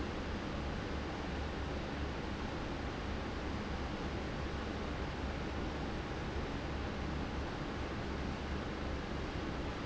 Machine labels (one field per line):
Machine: fan